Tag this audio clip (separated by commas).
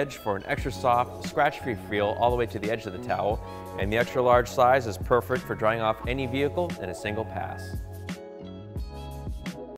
Speech, Music